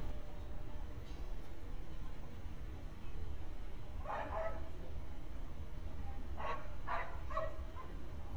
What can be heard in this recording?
person or small group talking, dog barking or whining